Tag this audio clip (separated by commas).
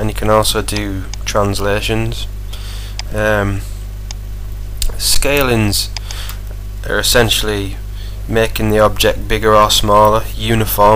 Speech, Tick